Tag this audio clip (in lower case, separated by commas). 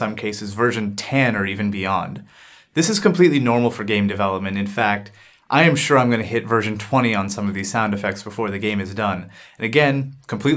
speech